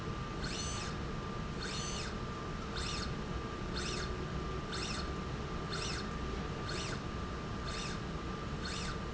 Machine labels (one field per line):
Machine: slide rail